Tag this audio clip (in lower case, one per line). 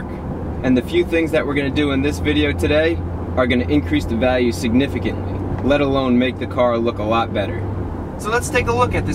speech